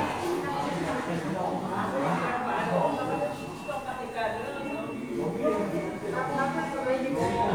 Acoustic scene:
crowded indoor space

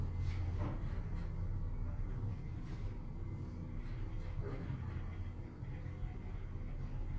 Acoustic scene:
elevator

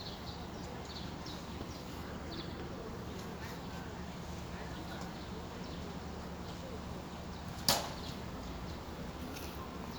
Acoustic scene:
residential area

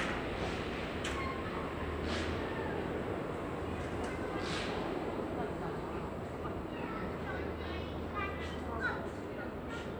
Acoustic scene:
residential area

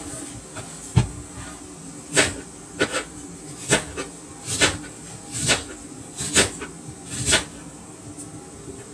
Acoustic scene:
kitchen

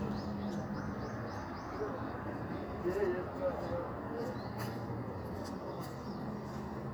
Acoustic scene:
street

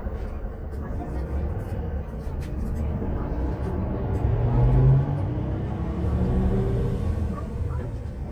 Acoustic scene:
bus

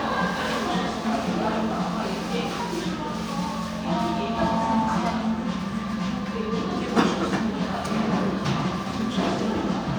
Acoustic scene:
crowded indoor space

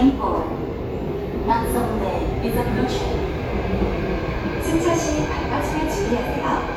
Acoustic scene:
subway station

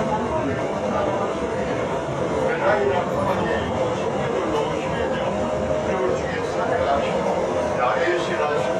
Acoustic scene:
subway train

